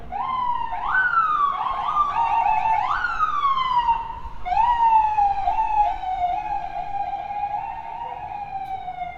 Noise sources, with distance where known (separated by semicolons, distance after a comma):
siren, near